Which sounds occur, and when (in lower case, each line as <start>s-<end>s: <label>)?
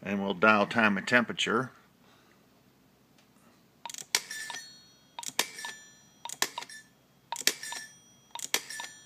0.0s-1.7s: male speech
0.0s-9.0s: mechanisms
1.9s-2.4s: breathing
3.1s-3.2s: generic impact sounds
3.1s-3.6s: breathing
3.8s-4.6s: dtmf
5.2s-5.8s: dtmf
6.2s-6.9s: dtmf
7.2s-7.9s: dtmf
8.3s-9.0s: dtmf